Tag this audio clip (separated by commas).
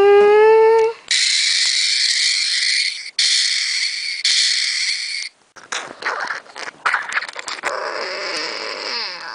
inside a small room